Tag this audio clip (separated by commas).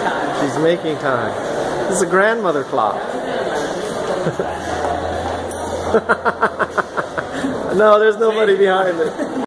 Speech